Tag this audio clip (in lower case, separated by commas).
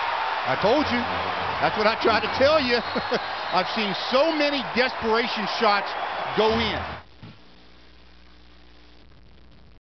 speech